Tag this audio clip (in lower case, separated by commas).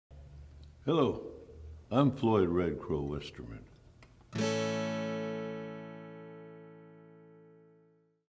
speech, music